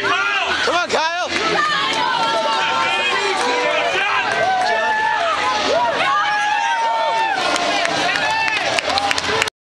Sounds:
speech

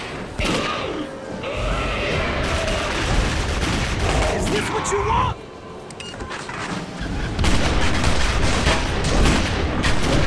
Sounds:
speech
fusillade
music

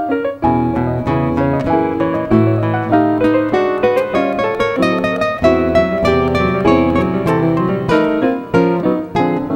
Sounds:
plucked string instrument
musical instrument
guitar
music

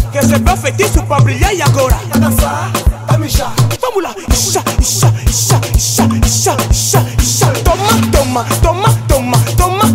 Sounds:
music of africa
music
house music
afrobeat

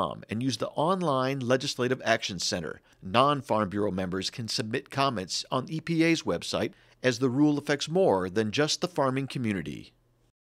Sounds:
speech
narration

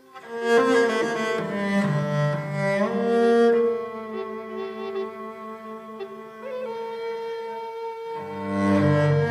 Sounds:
double bass
music
playing double bass

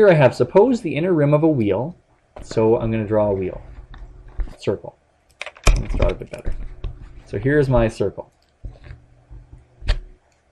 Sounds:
speech
computer keyboard

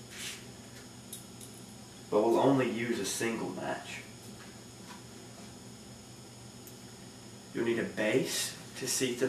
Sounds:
speech

